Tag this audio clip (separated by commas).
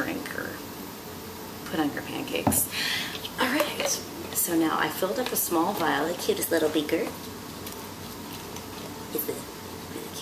Speech